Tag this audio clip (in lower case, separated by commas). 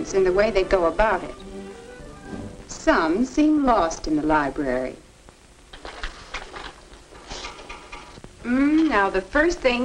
speech, music